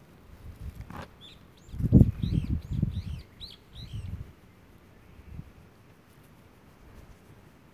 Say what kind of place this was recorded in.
park